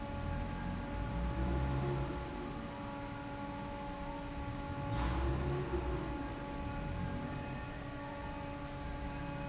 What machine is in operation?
fan